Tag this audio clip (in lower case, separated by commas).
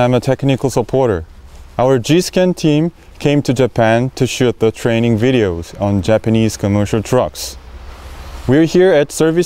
speech, vehicle, truck